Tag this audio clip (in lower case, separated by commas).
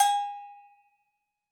bell